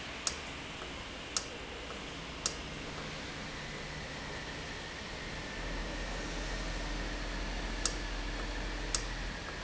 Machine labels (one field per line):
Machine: valve